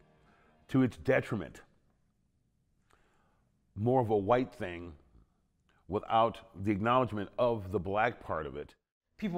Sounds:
speech

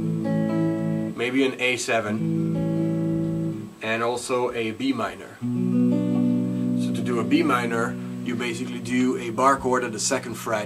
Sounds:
plucked string instrument, speech, musical instrument, strum, guitar, music

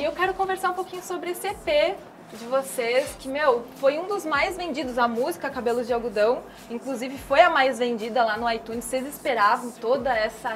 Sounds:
speech

